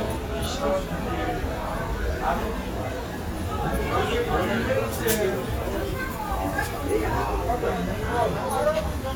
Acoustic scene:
restaurant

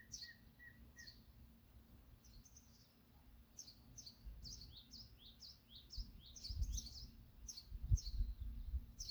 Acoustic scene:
park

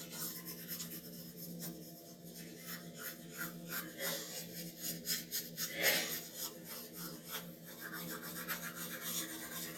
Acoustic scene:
restroom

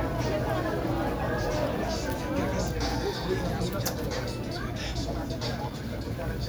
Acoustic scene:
crowded indoor space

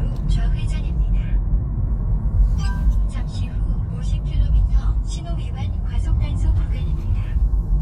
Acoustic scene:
car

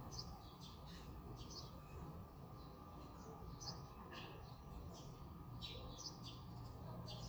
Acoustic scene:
residential area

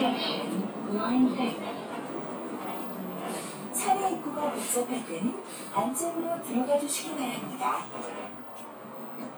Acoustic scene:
bus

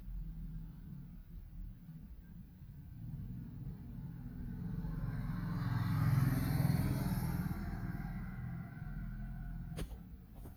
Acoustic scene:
residential area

